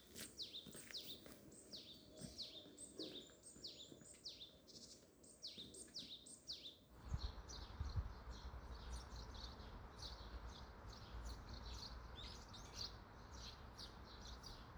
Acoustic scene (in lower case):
park